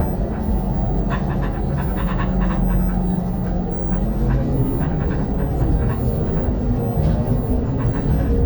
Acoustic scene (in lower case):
bus